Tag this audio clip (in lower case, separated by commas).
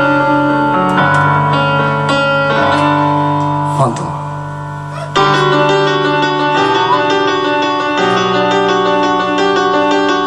speech, music